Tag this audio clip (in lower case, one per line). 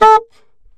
woodwind instrument
musical instrument
music